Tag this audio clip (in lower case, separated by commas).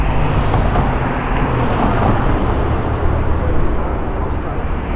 vehicle, traffic noise, motor vehicle (road)